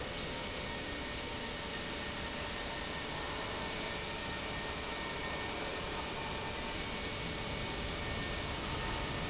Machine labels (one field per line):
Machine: pump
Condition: abnormal